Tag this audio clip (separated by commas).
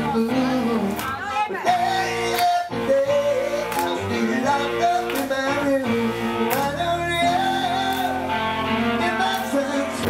Speech, Music